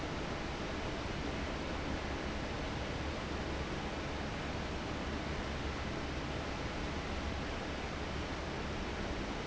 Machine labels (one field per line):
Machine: fan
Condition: abnormal